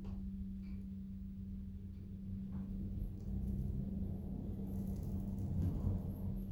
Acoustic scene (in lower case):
elevator